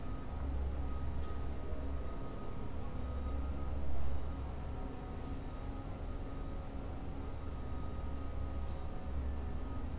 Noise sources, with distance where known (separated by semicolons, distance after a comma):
reverse beeper, far